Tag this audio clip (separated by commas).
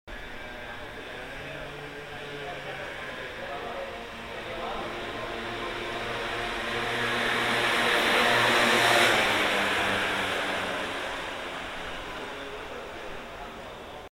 Engine